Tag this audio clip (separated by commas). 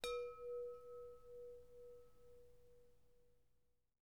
Bell, Chime